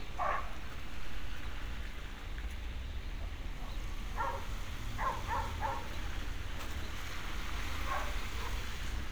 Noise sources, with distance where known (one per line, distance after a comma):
dog barking or whining